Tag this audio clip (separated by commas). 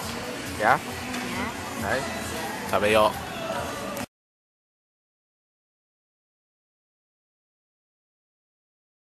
Speech, Music